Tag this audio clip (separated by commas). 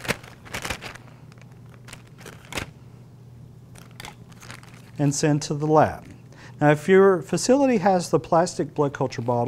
Speech, inside a small room